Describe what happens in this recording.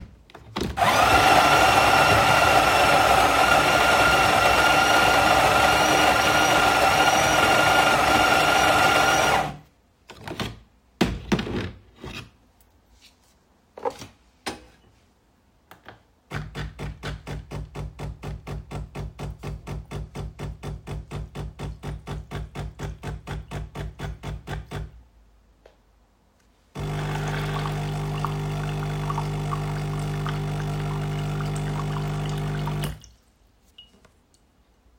I prepare a coffee using the coffee machine. I pull out the portafilter filled with ground coffee, insert it back into the machine, press the start button, and the coffee flows into my cup.